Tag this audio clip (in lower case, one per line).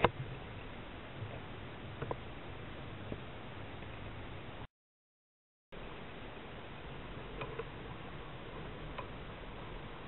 rowboat
canoe